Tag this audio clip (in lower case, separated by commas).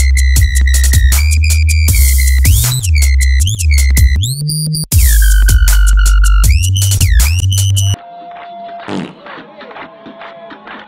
music